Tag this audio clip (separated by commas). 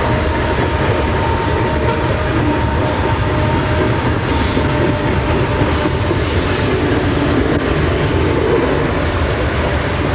Rail transport, train wagon, Clickety-clack, Train